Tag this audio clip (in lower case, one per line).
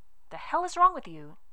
speech
female speech
human voice